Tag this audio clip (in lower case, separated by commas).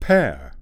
speech, human voice, man speaking